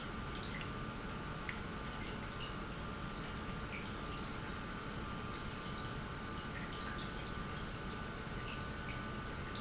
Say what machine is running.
pump